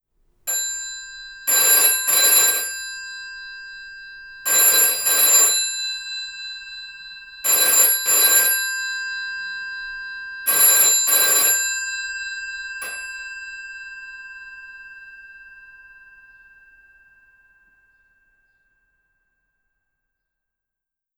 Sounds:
Telephone, Alarm

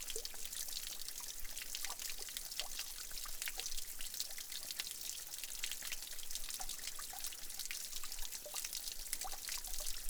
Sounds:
splatter, dribble, Stream, Liquid, Water, Pour

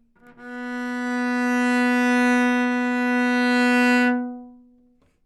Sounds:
Bowed string instrument, Music, Musical instrument

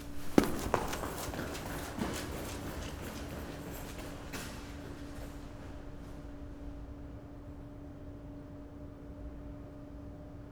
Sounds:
Run

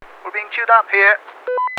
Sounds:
Male speech, Human voice, Speech

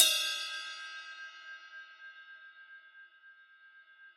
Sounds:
Music, Cymbal, Musical instrument, Percussion, Crash cymbal

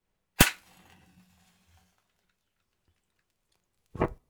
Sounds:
Fire

